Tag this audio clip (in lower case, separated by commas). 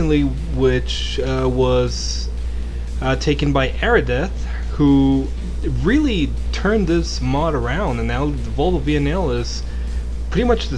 speech